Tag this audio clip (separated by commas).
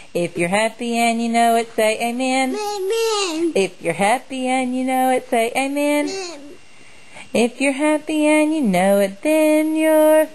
Speech